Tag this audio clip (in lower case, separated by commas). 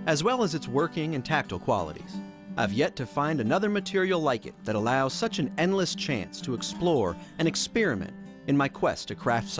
music, speech